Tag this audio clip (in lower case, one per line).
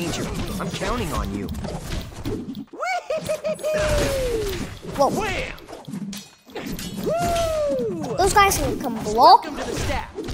speech